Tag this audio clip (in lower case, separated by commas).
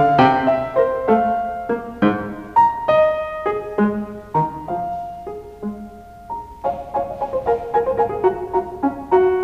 music, classical music, piano, musical instrument